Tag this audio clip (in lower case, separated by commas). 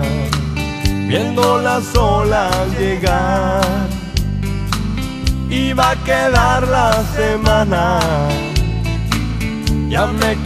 jazz, bluegrass, funk, music, dance music, country